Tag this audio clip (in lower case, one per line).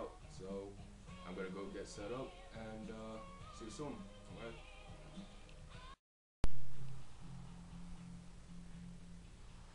speech